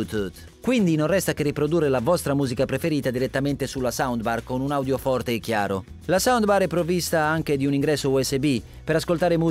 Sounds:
speech
music

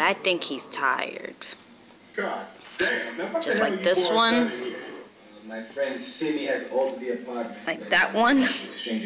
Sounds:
speech

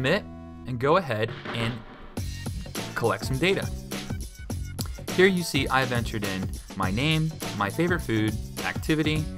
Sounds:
speech
music

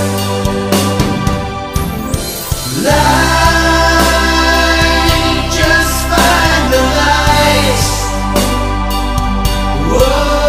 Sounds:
music

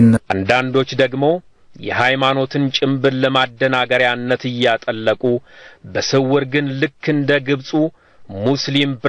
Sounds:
speech

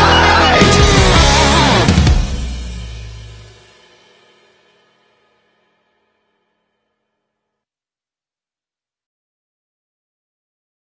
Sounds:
playing cymbal
cymbal

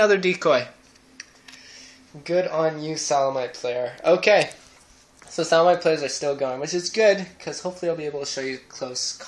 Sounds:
speech

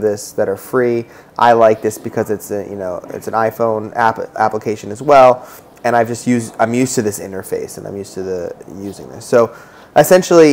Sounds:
speech

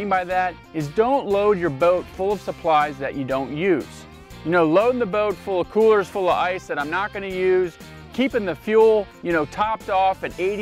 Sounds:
music
speech

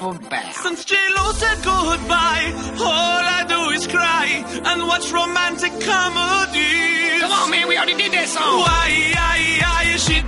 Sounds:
music

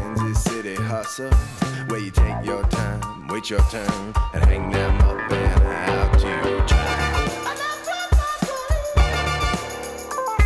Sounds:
music

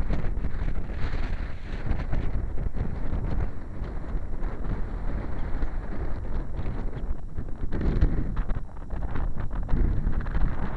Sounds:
wind noise
wind noise (microphone)

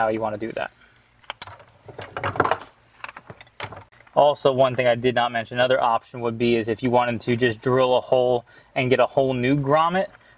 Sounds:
speech

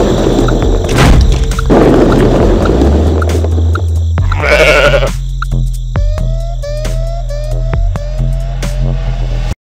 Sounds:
music
goat

